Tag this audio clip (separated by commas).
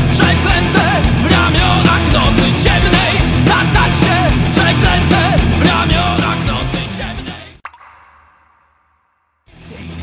Angry music, Music